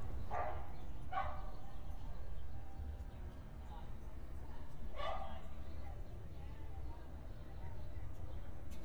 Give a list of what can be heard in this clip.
background noise